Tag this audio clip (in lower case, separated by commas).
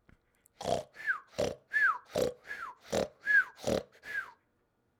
respiratory sounds, breathing